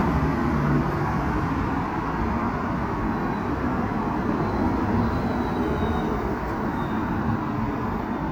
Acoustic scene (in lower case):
street